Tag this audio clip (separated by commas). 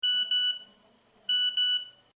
Telephone, Alarm